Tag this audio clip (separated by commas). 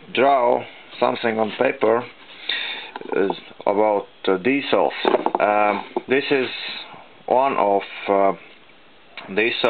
Speech